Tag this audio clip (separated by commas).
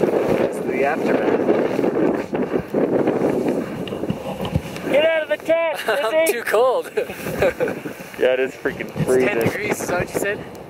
Speech, outside, rural or natural